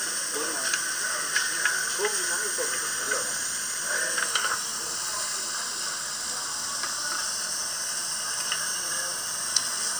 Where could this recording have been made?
in a restaurant